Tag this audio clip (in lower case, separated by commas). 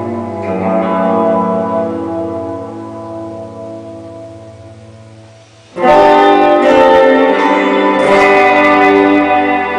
plucked string instrument, musical instrument, guitar, music